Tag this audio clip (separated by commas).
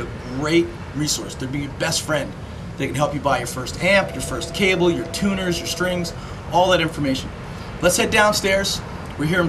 Speech